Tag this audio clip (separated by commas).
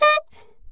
Musical instrument, woodwind instrument, Music